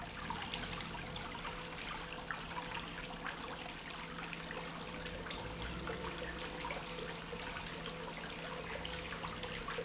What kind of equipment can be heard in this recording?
pump